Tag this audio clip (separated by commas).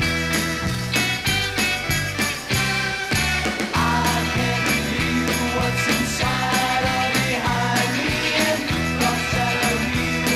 Music